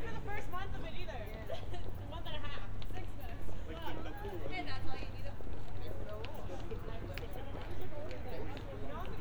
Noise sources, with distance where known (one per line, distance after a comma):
person or small group talking, near